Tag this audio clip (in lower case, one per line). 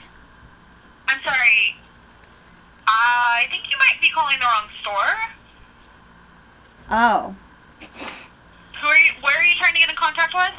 speech
inside a large room or hall